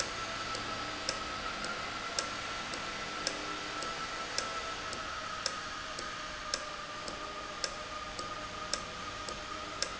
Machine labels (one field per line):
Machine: valve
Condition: normal